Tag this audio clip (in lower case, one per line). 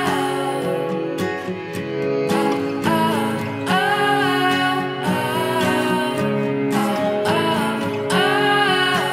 music